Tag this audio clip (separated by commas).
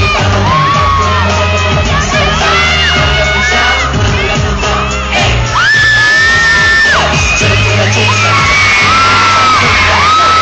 Music, Speech